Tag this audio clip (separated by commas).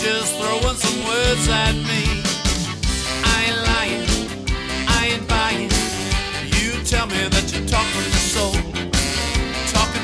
Music